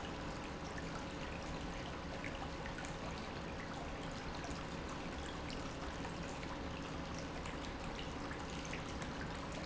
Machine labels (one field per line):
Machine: pump